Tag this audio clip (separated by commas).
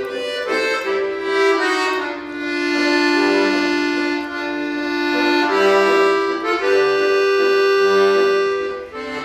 Musical instrument, Music, Accordion, playing accordion